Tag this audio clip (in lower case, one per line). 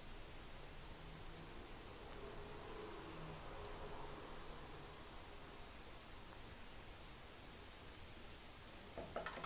inside a small room
silence